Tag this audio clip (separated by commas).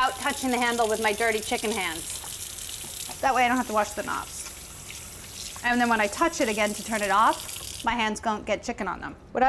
inside a small room, Speech